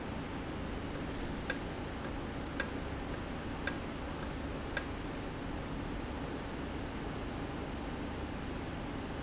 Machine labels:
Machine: valve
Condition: normal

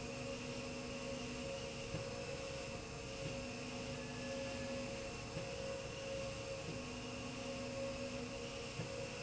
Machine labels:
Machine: slide rail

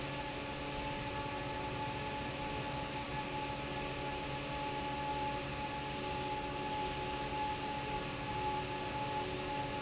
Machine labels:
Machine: fan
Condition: normal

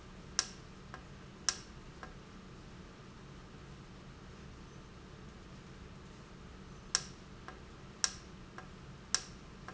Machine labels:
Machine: valve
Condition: normal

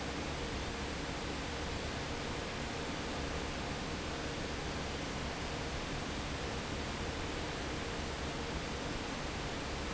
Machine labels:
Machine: fan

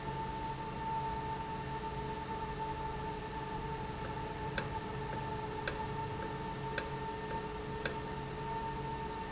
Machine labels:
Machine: valve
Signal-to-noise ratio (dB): -6 dB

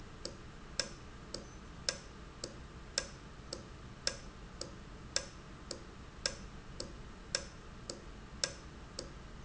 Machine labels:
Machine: valve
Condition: normal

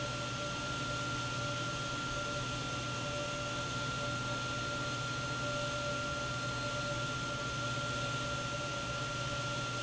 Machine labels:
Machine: pump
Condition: abnormal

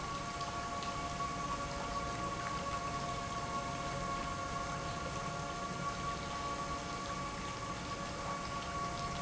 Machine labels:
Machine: pump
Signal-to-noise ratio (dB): -6 dB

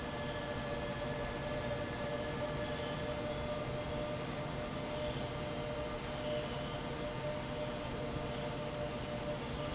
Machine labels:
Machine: fan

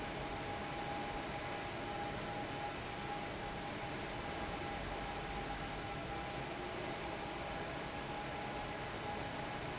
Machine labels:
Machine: fan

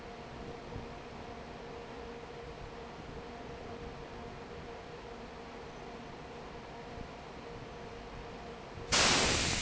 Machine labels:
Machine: fan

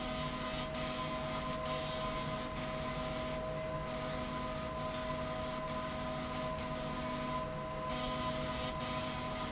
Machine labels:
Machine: slide rail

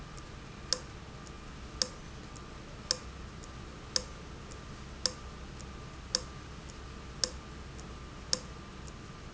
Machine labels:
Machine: valve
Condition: abnormal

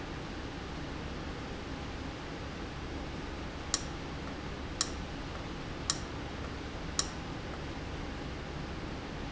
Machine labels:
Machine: valve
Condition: abnormal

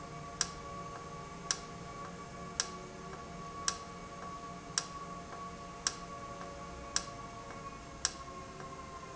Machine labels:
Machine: valve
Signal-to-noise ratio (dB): 0 dB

